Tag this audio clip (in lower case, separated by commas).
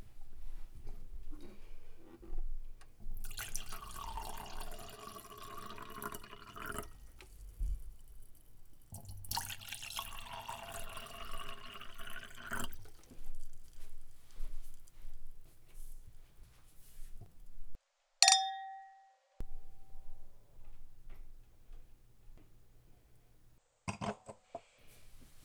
clink, glass